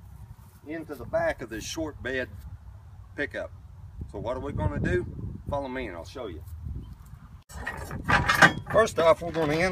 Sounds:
speech

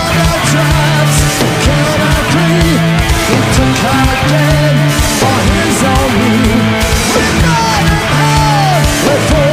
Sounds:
music

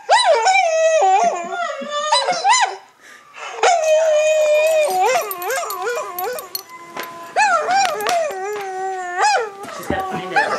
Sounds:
bark
dog

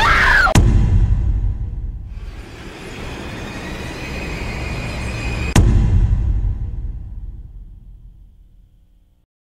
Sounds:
music

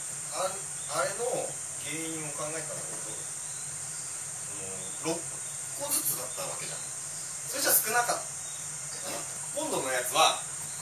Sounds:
speech

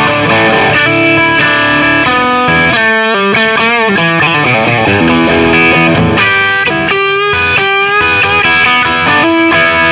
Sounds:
rock music
guitar
musical instrument
plucked string instrument
effects unit
electric guitar
music

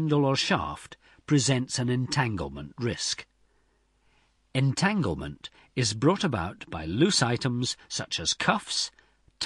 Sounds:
speech

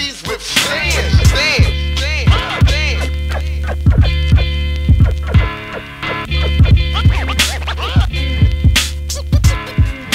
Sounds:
music

